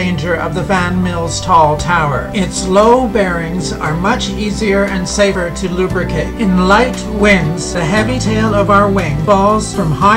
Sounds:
Speech, Music

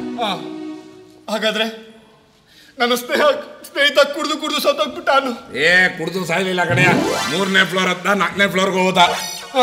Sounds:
man speaking

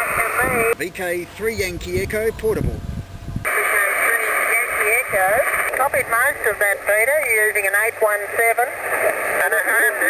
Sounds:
outside, rural or natural, Speech

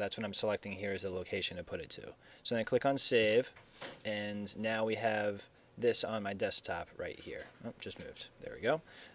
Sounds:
Speech

